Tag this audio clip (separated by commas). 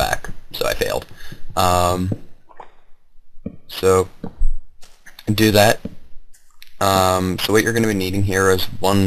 Speech, Tap